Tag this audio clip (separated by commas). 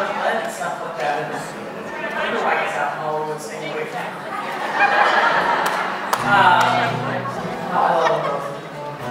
Speech, Music